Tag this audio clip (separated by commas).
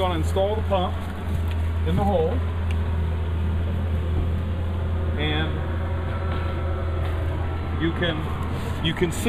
Speech